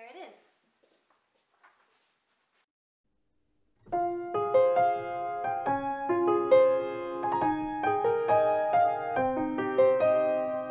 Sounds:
Musical instrument, Keyboard (musical), Piano

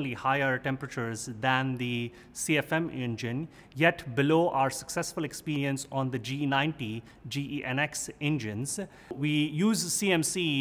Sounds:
Speech

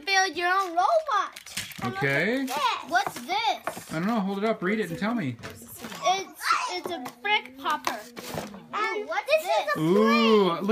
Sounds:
Speech, kid speaking

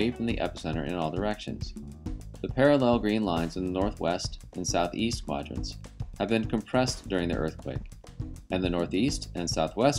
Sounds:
Speech, Music

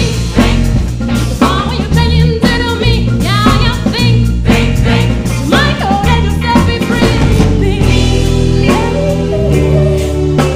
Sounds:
Roll, Music, Rock and roll

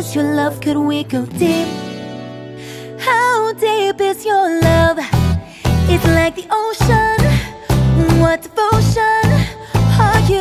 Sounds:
Music

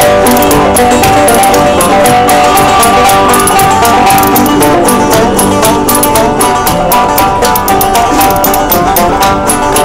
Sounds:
Music

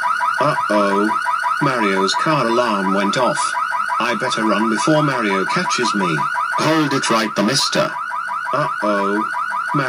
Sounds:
Speech

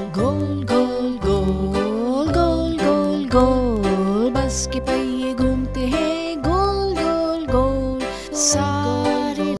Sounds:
Music

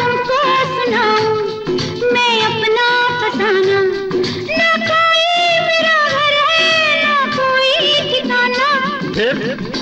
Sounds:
Music of Bollywood, Music, Singing

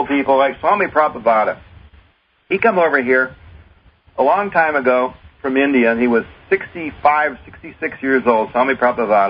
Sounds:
Speech

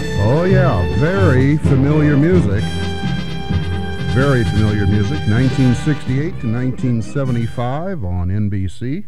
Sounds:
Speech, Music

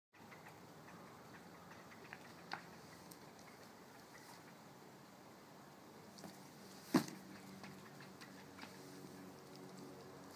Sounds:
Silence

